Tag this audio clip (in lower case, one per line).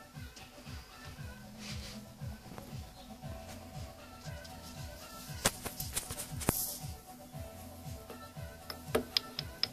rattle
music